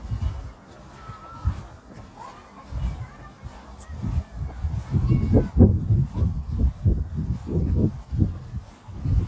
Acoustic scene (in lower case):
park